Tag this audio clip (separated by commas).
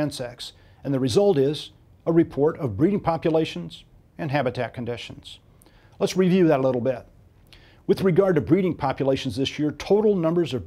Speech